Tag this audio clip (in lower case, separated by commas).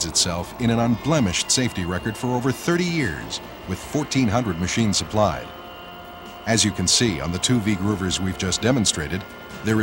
speech, music